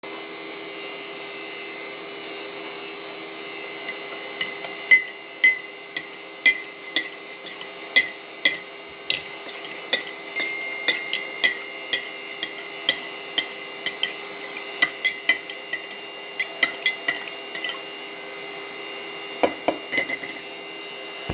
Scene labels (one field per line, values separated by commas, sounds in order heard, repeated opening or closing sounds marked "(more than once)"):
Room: living room, kitchen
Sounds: vacuum cleaner, cutlery and dishes, phone ringing